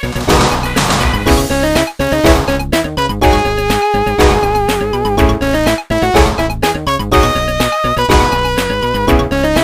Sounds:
Music

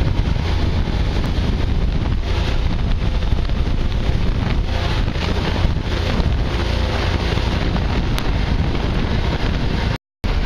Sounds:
Water vehicle, Vehicle

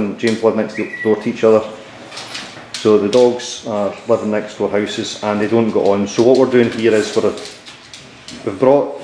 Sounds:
Speech

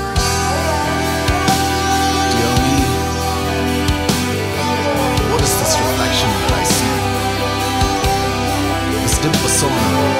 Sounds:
Music, Speech, House music

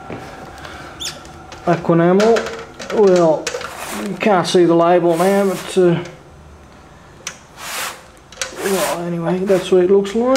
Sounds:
Speech

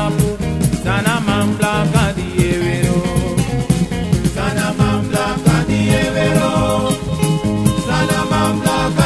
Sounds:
Music

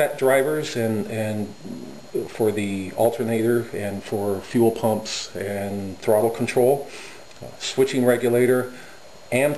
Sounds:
Speech

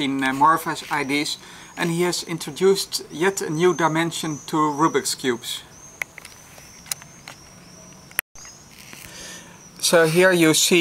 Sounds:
Speech, outside, urban or man-made

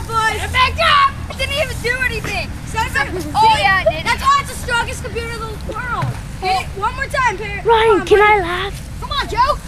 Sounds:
Speech

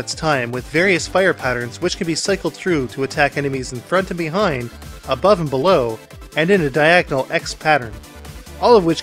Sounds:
Music, Speech

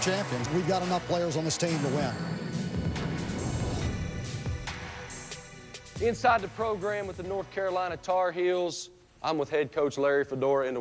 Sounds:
Speech, Music

